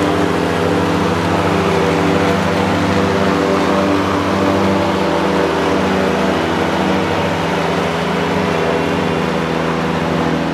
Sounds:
lawn mowing

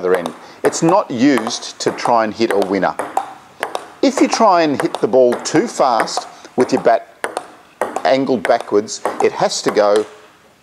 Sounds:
playing table tennis

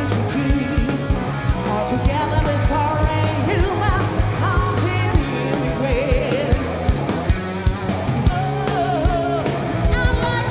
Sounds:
singing, music, song, heavy metal

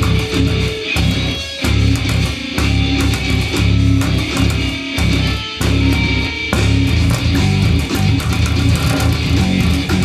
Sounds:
guitar, music, electric guitar, plucked string instrument, strum, musical instrument

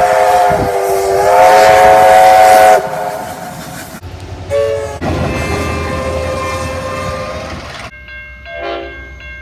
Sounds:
train whistling

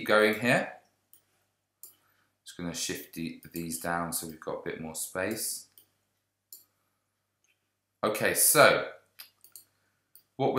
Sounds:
inside a small room, speech

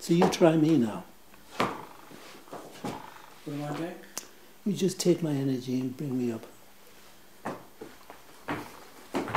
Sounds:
speech, inside a small room

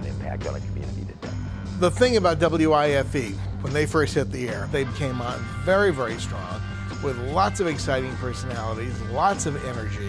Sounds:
speech, music

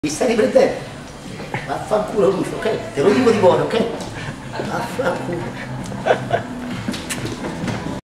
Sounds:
speech

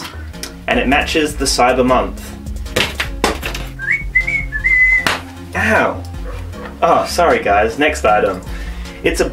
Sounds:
music, whistling, inside a small room, speech

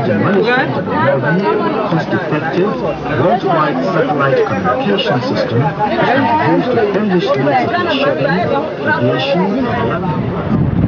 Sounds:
speech

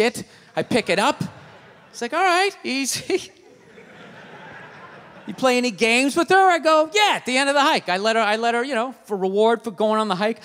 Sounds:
speech

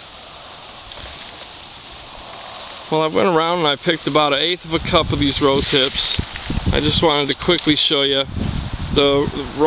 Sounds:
outside, rural or natural, speech

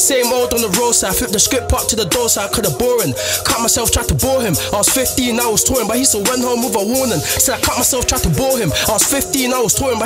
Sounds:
singing, music

